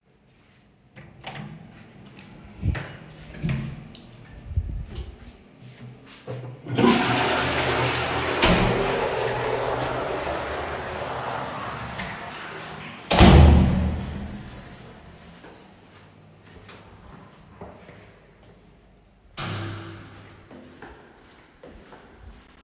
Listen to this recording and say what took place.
I flushed the toilet, closed the door, walks back to my room.